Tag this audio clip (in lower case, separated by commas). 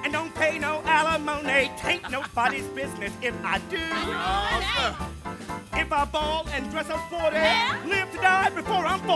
speech, music